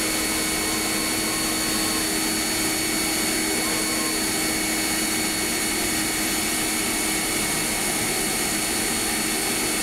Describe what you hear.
High frequency mechanical and drilling sounds